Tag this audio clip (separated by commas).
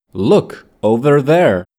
Speech, man speaking, Human voice